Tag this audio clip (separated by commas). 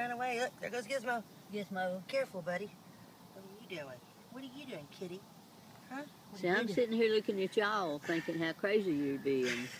Speech